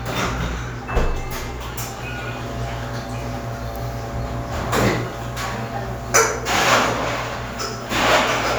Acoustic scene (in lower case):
cafe